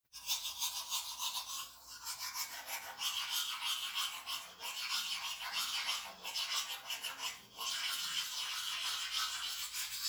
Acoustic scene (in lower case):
restroom